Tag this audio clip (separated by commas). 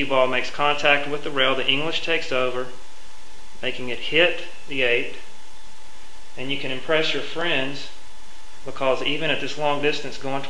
inside a small room, Speech